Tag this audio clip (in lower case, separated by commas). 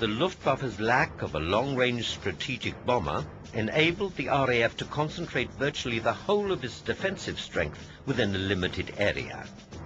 outside, rural or natural, music, speech